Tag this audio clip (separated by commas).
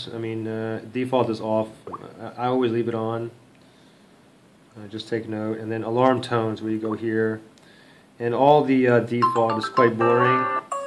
Speech